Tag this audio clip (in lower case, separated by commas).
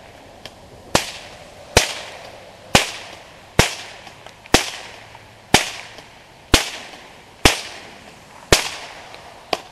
firecracker